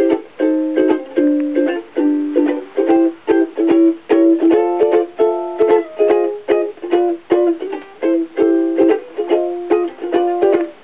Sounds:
music

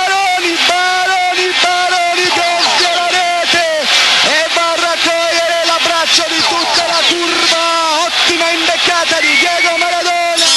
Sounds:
speech, radio, music

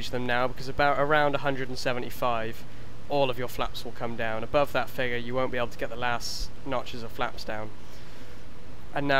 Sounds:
speech

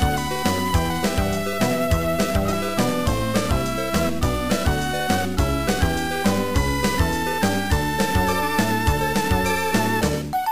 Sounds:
music, soundtrack music

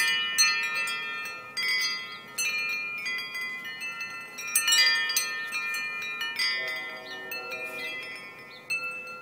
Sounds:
wind chime, chime

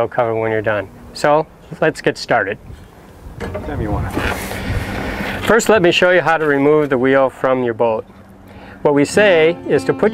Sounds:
speech, music

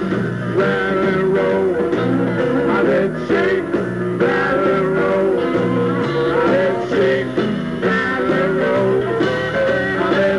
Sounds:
music

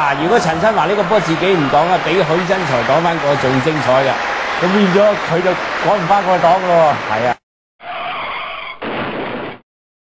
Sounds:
speech

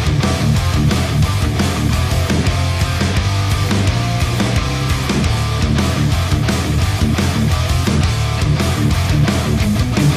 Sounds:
strum, electric guitar, musical instrument, bass guitar, acoustic guitar, guitar, plucked string instrument, music

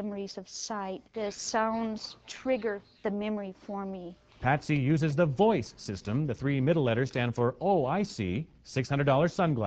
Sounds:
speech

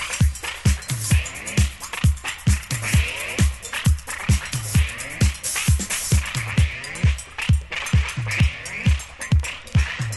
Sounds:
music

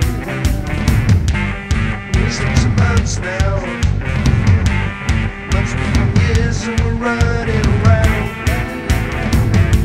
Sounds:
music

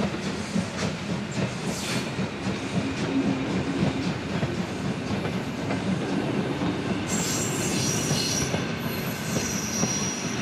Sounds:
train, vehicle, rail transport, railroad car

